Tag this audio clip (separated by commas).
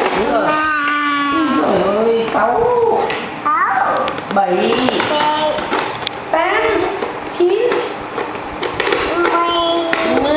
kid speaking, Speech